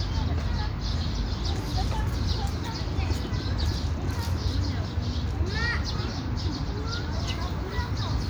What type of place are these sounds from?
park